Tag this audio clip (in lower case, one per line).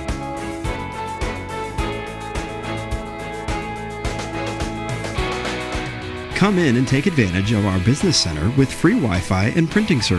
speech
music